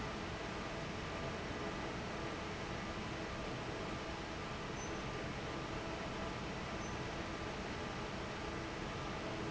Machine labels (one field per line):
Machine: fan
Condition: normal